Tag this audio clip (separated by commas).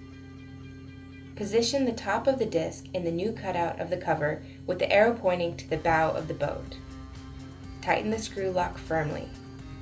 Speech, Music